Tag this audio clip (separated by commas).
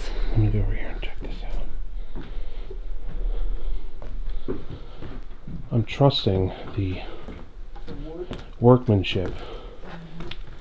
Speech